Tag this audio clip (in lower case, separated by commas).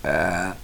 eructation